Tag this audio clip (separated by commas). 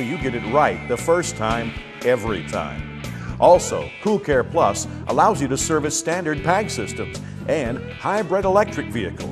Music, Speech